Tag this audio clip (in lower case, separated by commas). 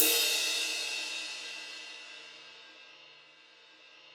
crash cymbal, percussion, cymbal, musical instrument, music